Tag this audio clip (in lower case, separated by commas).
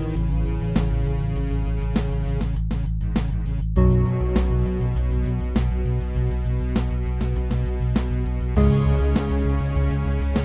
music